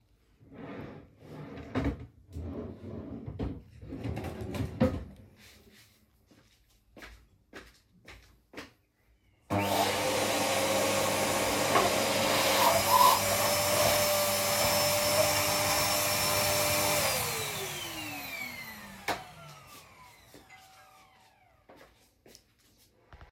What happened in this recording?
i open the drawers looking for something , then come back to vaccum my room and hears the bell.